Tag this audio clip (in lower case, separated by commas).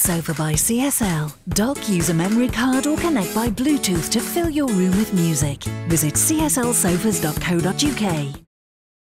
music, speech